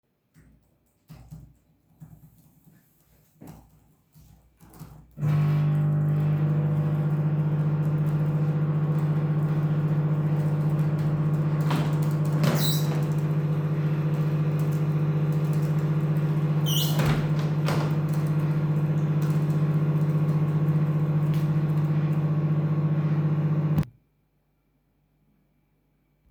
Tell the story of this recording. A person types on a keyboard, while another person turns on the microwave. Then second person opens the window and immadiately closes it. First person stops typing, and then the microwave stops working after that.